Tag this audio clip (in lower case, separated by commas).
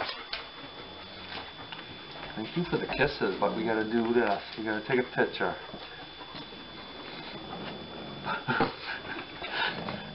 speech